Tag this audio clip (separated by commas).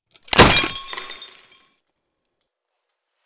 Glass, Shatter